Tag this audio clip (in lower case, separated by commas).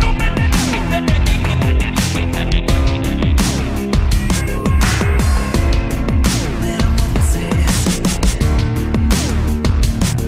drum and bass